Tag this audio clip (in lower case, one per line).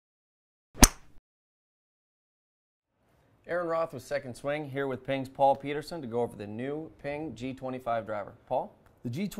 speech